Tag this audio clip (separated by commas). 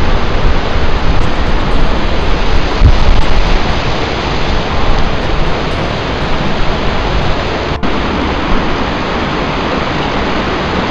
Music, outside, rural or natural